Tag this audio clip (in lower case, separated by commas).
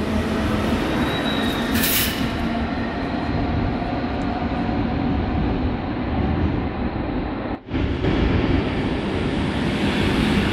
driving buses, bus, vehicle